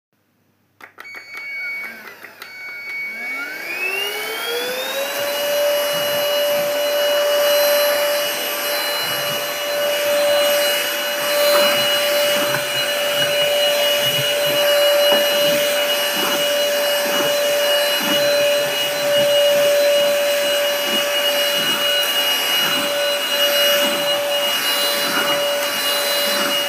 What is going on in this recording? I vacuum the living room floor for a short period of time.